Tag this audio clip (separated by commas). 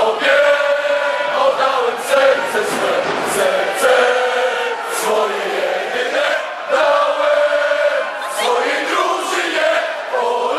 Crowd, Cheering, Speech